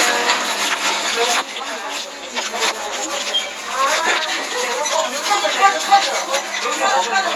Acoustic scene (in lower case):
crowded indoor space